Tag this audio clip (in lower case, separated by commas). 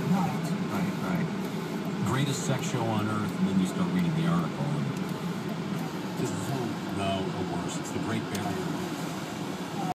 speech